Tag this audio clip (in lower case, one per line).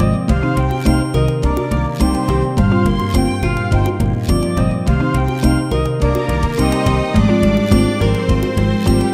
music